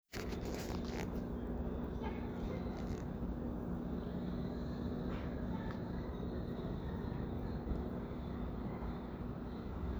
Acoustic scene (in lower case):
residential area